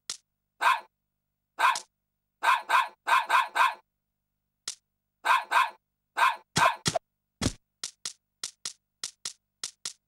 A dog barking and some clicking sound effects